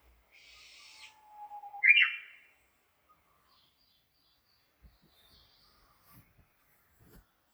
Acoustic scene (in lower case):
park